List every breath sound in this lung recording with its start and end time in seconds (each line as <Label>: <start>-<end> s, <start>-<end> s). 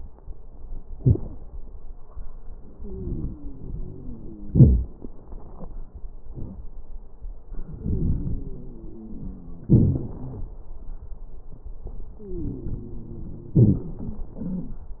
Inhalation: 2.75-4.54 s, 7.46-9.71 s, 12.22-13.57 s
Exhalation: 4.51-4.96 s, 9.71-10.53 s, 13.59-14.88 s
Wheeze: 2.75-4.54 s, 7.47-9.67 s, 9.71-10.53 s, 12.22-13.57 s, 14.43-14.75 s
Crackles: 4.51-4.96 s